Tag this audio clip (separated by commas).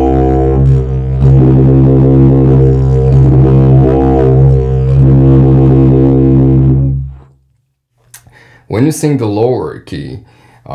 playing didgeridoo